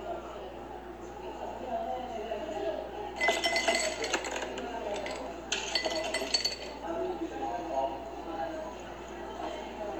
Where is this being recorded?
in a cafe